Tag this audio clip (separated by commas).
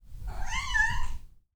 Cat, Meow, pets, Animal